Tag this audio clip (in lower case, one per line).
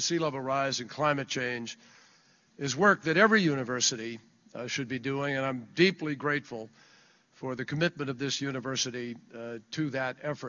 man speaking
narration
speech